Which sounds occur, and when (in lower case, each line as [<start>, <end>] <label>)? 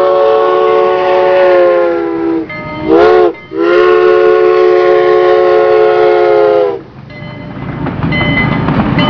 [0.00, 9.05] train
[2.44, 3.41] bell
[7.01, 7.77] bell
[7.97, 8.76] bell
[8.90, 9.05] bell